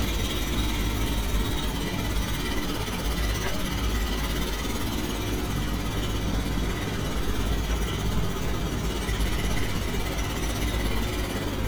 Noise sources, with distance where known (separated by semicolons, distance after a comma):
jackhammer